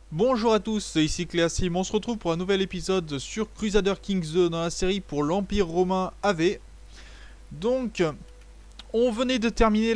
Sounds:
speech

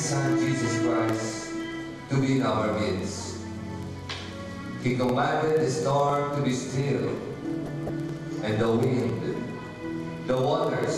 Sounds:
music
speech

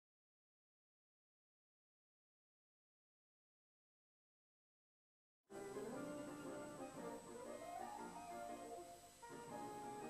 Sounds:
music

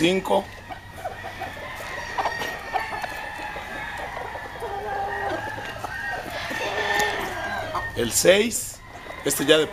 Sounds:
speech

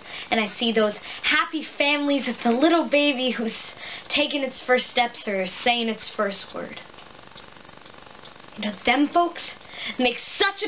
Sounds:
speech

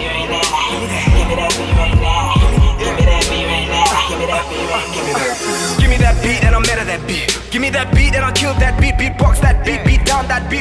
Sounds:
music

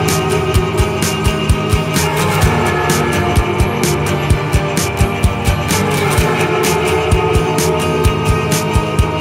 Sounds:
music

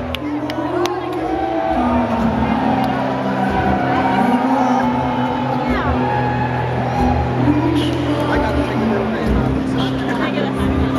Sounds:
speech
music

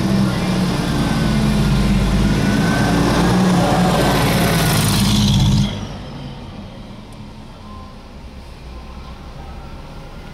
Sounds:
vehicle
motor vehicle (road)

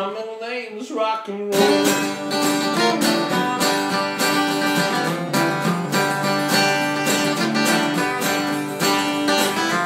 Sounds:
rock and roll
music

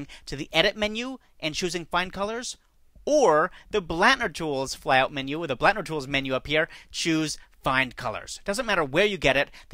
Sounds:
speech

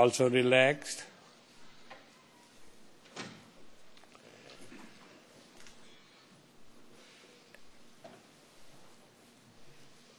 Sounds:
speech

